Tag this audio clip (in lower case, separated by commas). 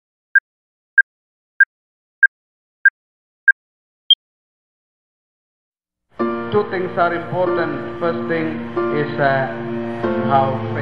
inside a public space, inside a large room or hall, music, speech